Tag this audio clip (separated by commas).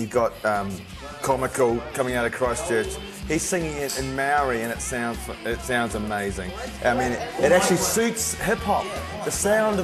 Speech, Music